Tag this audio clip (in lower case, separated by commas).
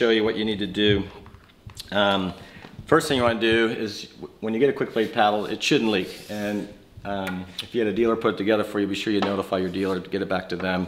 speech